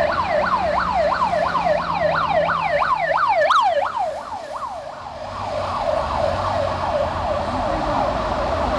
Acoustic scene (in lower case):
street